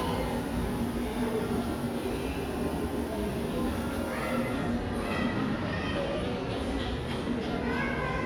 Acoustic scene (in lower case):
cafe